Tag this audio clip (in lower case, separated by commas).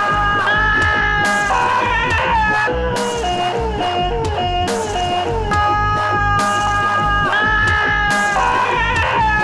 screaming, dubstep, people screaming, music